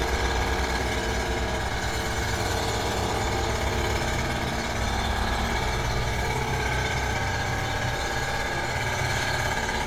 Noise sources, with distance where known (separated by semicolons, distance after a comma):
jackhammer